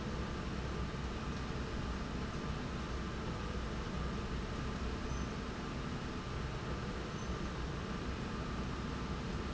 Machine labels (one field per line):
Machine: slide rail